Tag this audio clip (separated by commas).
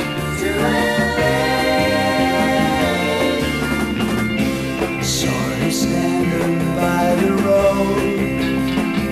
Music